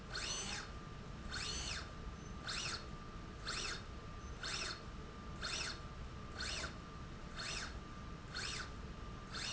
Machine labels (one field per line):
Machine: slide rail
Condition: normal